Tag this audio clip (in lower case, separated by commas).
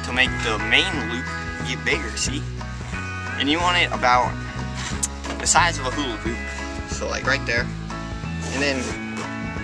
speech, music